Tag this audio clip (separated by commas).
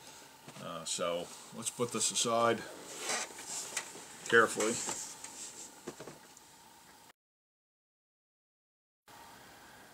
Speech